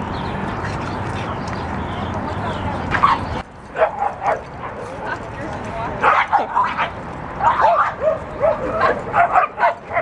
Women are talking and laughing and dogs are barking